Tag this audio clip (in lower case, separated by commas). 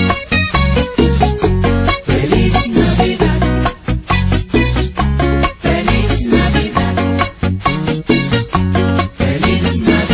christmas music, music